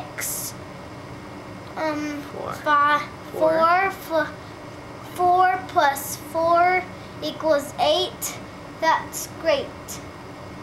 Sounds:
Speech

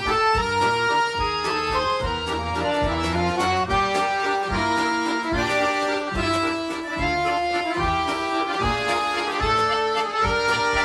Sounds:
playing accordion, Accordion

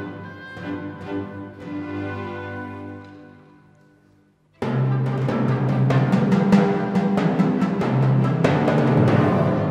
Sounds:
playing tympani

